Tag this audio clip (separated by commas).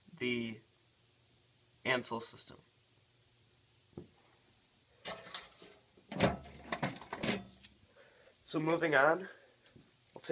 Door, Speech